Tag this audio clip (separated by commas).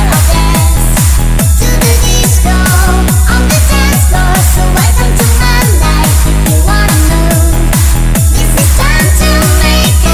Music